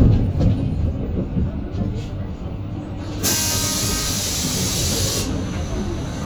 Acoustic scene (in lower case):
bus